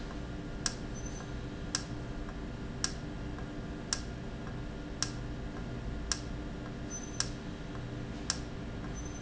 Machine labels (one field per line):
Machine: valve